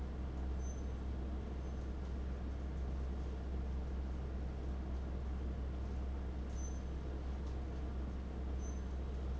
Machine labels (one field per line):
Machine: fan